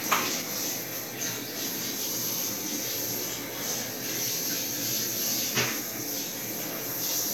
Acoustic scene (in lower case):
restroom